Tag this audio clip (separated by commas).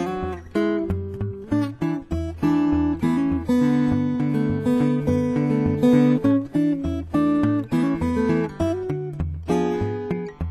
Music, Guitar, Musical instrument, Plucked string instrument